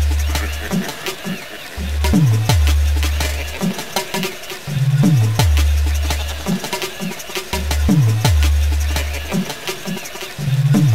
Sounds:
Music, Background music

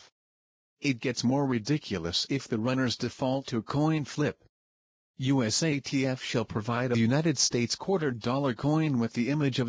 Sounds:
Speech

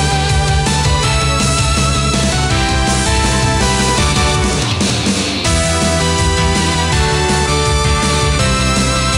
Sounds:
Music

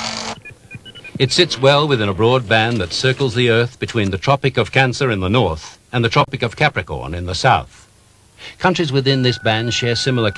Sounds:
Speech

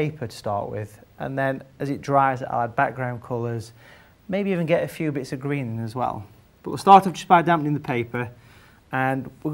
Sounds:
Speech

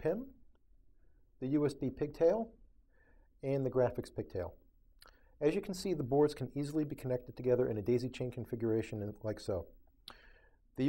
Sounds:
Speech

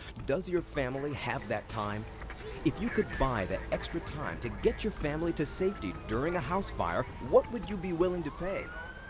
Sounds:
Speech

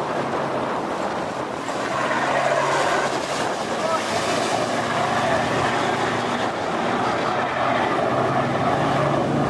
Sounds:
Sailboat, Speech

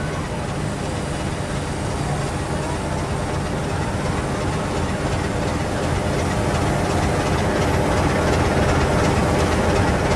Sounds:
Vehicle

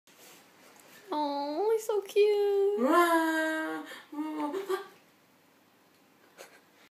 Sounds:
Speech

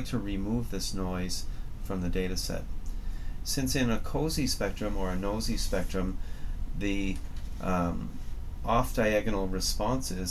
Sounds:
Speech

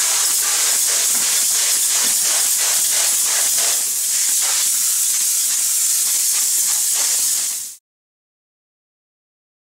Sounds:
Spray

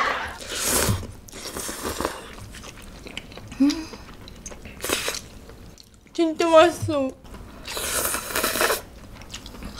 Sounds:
people eating noodle

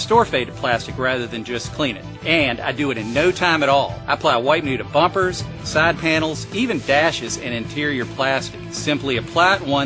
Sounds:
Speech, Music

